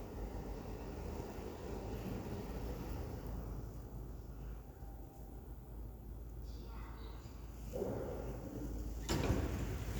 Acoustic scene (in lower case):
elevator